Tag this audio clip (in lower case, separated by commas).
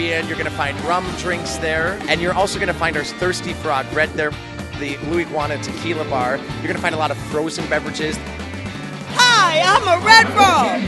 music, speech